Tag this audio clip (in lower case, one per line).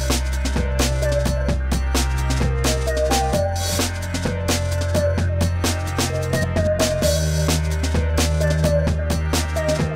music